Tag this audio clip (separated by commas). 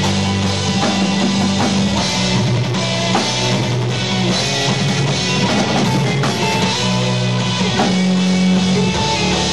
Drum roll, Percussion, Snare drum, Rimshot, Drum, Drum kit, Bass drum